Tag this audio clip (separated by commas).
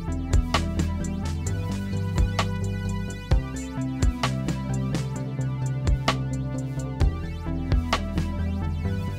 Music